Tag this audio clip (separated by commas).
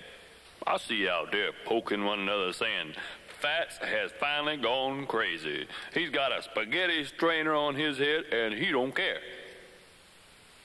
Speech